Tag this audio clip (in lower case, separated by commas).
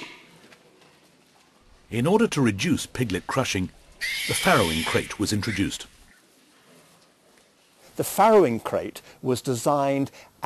speech, oink